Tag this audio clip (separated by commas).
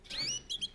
Bird vocalization, Animal, tweet, Bird, Wild animals